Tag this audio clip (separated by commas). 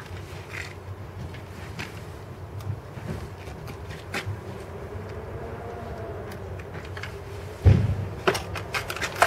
Chainsaw